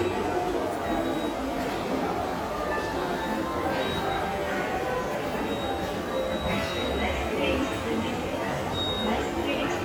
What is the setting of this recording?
subway station